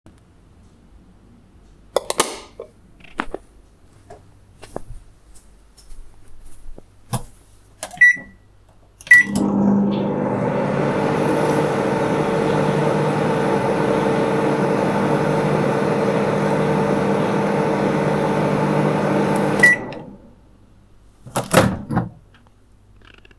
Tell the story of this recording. I flipped the lightswitch and started the microwave. I let it run for a bit before stopping it and opening it.